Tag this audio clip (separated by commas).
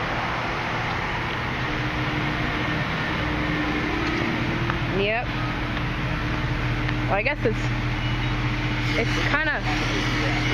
Speech, Motor vehicle (road), Car, Vehicle